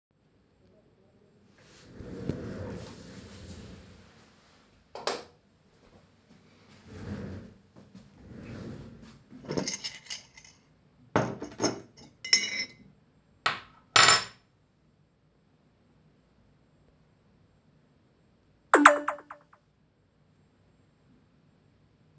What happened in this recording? Moved with my office chair to turn the light on, then moved my cup and suddenly I got a message.